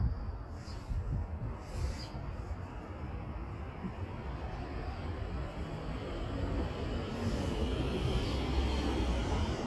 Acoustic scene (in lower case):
street